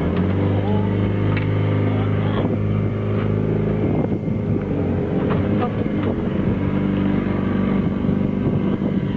Low rumblings of an engine, people speak